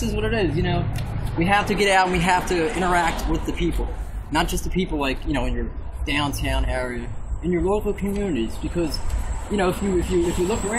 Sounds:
speech

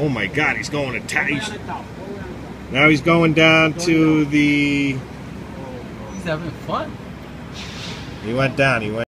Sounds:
speech

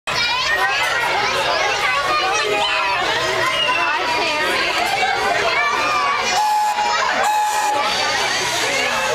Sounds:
crowd

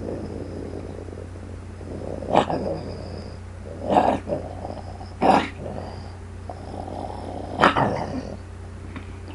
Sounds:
growling, animal

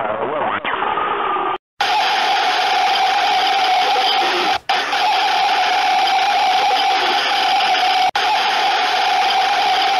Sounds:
radio, speech

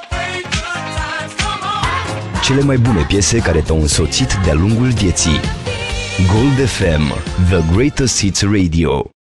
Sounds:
music, speech

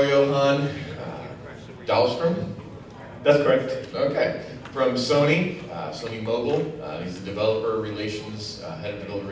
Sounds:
male speech

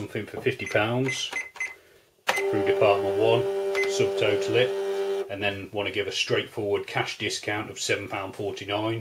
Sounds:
cash register, speech

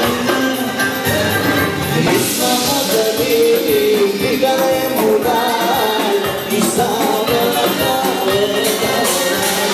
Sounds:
music, male singing

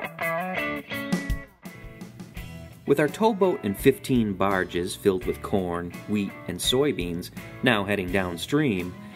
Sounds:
speech, music

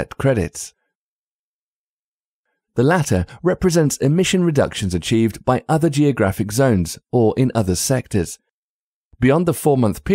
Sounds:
speech synthesizer, speech

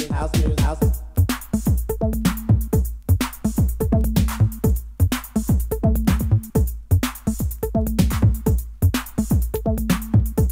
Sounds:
music, house music

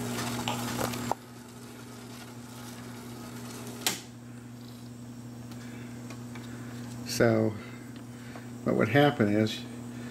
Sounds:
inside a small room, speech

